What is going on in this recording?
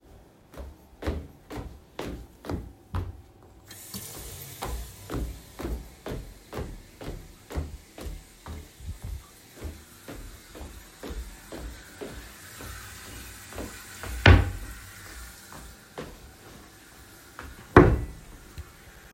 I walked, turned on the water to run and also open and closed kitchen drawers